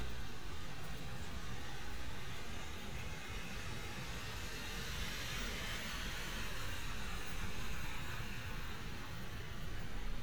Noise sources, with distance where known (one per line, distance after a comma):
background noise